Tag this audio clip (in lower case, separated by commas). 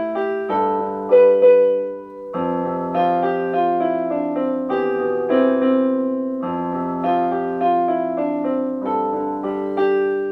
keyboard (musical), electric piano, piano